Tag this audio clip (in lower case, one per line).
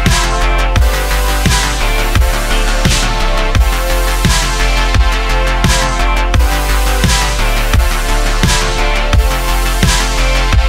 music